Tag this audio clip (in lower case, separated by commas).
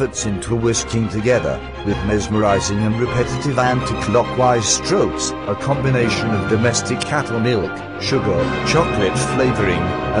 music, speech